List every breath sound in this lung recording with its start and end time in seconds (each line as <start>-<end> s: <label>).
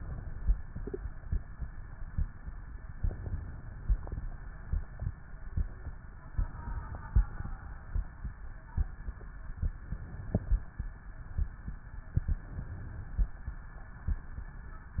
0.00-0.54 s: inhalation
2.96-4.02 s: inhalation
6.37-7.43 s: inhalation
9.63-10.77 s: inhalation
12.20-13.34 s: inhalation